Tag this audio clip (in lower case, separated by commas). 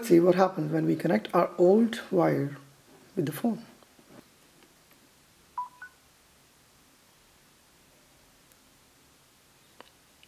speech